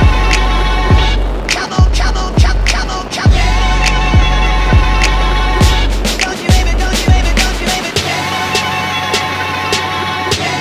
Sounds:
music

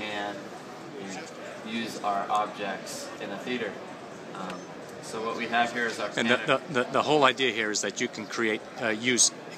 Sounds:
speech

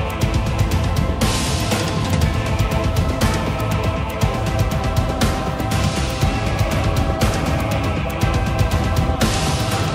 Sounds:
music

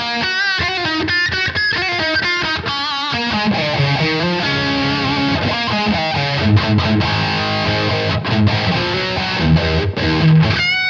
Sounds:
music
musical instrument
electric guitar
plucked string instrument
guitar
heavy metal
rock music

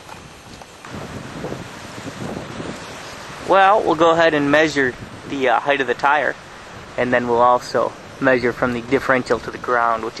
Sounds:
speech

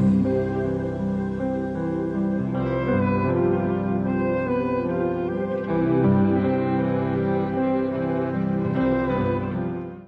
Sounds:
music

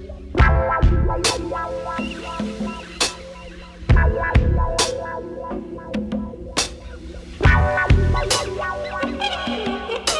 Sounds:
music

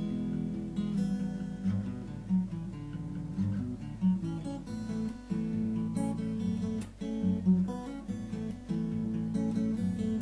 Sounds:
musical instrument
music
playing acoustic guitar
plucked string instrument
strum
guitar
acoustic guitar

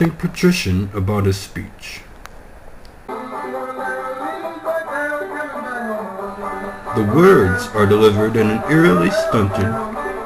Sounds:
folk music
music
speech

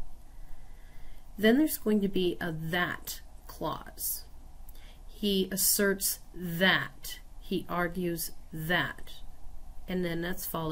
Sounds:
speech

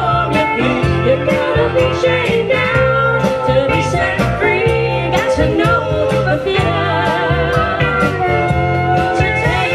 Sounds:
singing
music

